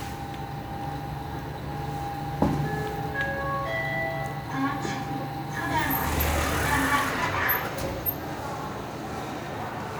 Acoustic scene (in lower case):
elevator